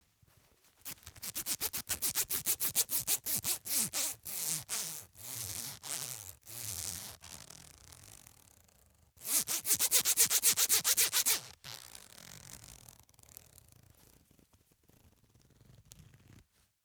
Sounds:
home sounds, Zipper (clothing)

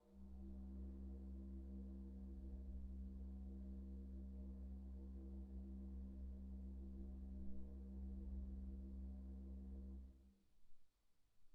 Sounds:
Keyboard (musical), Music, Organ, Musical instrument

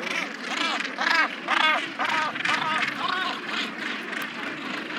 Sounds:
Bird, Wild animals, Animal, Gull

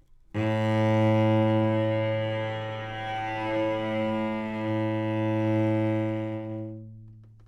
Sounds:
Music, Musical instrument, Bowed string instrument

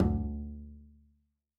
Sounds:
Bowed string instrument, Musical instrument, Music

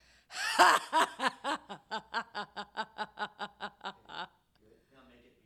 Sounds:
Human voice, Laughter

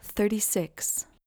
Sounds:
Female speech, Speech, Human voice

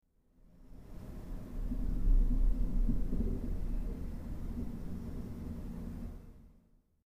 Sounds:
Thunder, Rain, Water, Thunderstorm

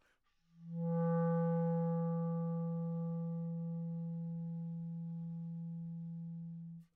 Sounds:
Musical instrument, Music, Wind instrument

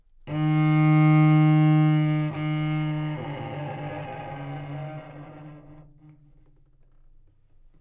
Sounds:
Music, Musical instrument, Bowed string instrument

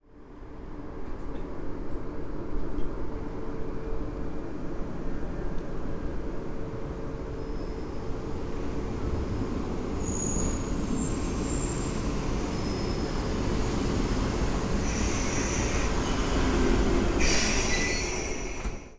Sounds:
Train, Vehicle, Rail transport

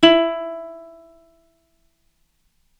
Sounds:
Plucked string instrument, Music, Musical instrument

